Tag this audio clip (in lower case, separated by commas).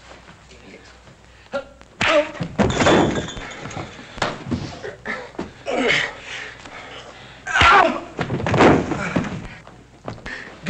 speech